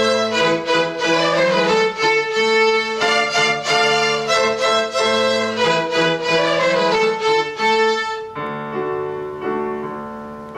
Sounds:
musical instrument, music, violin

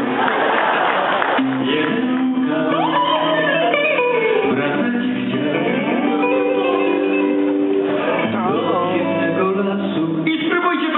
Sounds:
male singing, pop music, music

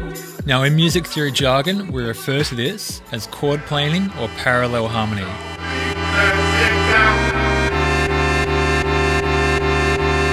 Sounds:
music, speech, house music

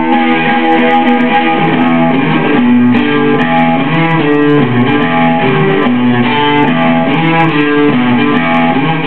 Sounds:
plucked string instrument, playing electric guitar, guitar, music, musical instrument, electric guitar

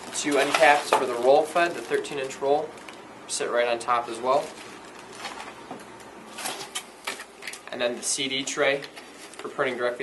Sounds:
speech

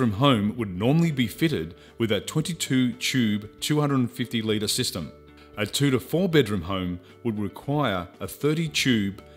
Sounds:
music, speech

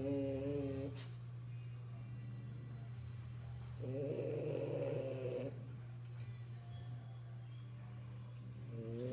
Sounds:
snoring

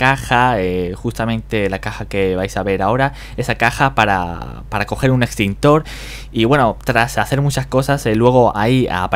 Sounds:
speech

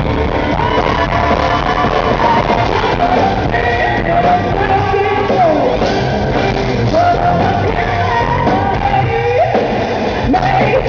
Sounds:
whoop, music, singing

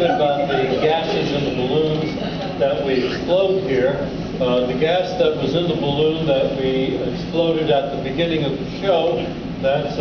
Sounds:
speech

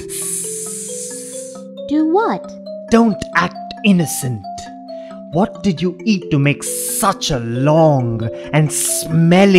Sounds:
music, speech, vibraphone

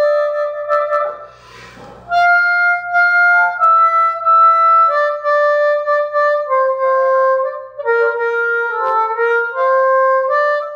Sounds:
wind instrument, harmonica

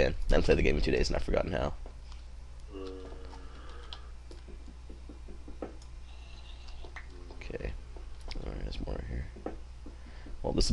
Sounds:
speech

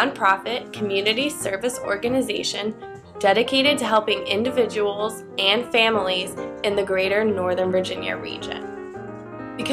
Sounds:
music, speech

